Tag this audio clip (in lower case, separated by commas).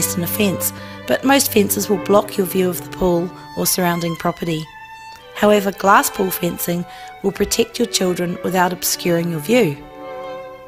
speech, music